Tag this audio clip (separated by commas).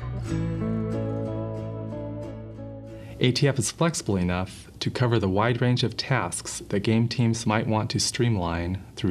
Speech, Music